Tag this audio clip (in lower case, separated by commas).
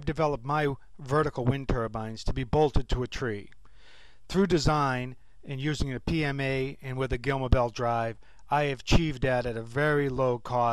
speech